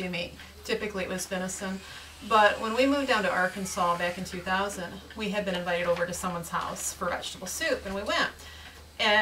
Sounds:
Speech

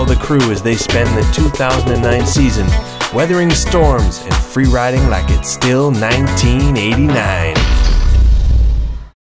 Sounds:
Speech, Music

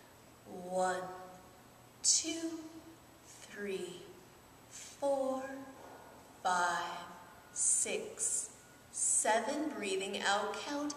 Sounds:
Speech

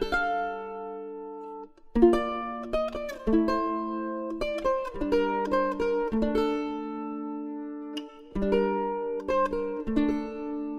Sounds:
Sad music, Music

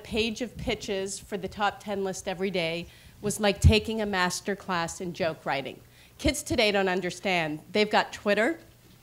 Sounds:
Speech

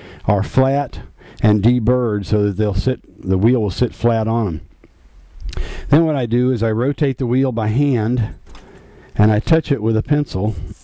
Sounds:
Speech

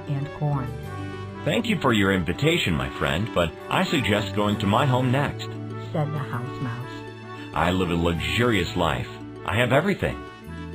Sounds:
Music, Speech

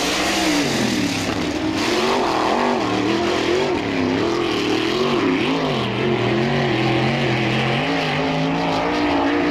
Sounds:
Vehicle, Motor vehicle (road), Car

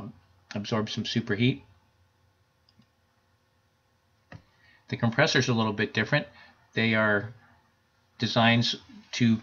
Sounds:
Clicking, Speech

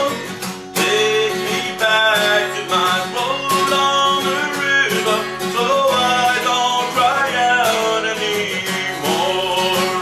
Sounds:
Music

